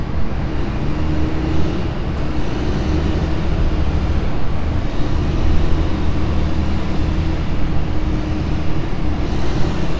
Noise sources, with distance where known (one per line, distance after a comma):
large-sounding engine, near